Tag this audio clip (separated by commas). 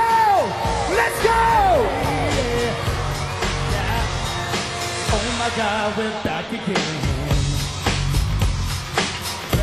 Speech, Music